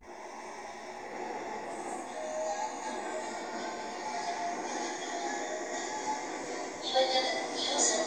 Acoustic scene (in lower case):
subway train